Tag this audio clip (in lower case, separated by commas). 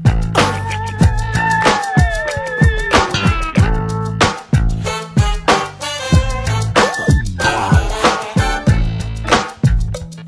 music